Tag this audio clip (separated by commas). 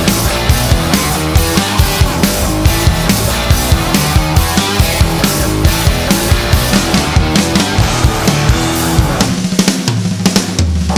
Drum kit, Musical instrument, Drum, Music